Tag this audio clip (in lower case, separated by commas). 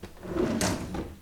domestic sounds, drawer open or close